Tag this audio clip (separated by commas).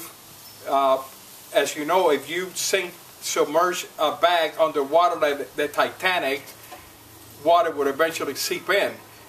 Speech